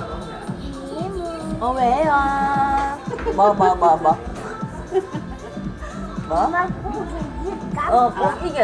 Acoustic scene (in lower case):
restaurant